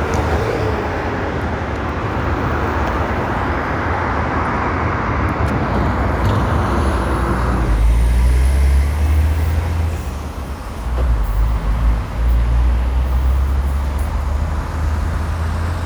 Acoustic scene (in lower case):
street